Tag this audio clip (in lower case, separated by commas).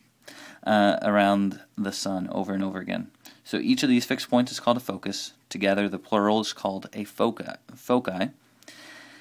speech